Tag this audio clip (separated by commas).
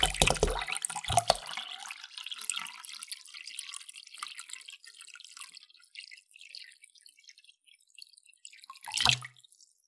Liquid